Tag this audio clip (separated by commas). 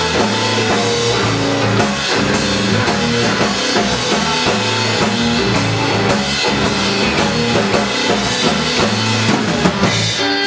Blues, Musical instrument, Plucked string instrument, Drum kit, Music, Drum, Rock music, Guitar